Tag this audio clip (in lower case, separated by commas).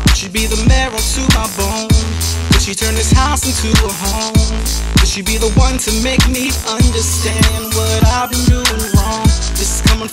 jazz, music